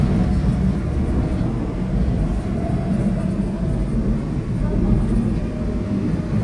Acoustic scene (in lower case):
subway train